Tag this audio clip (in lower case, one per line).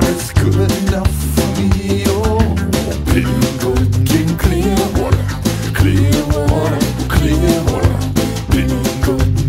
music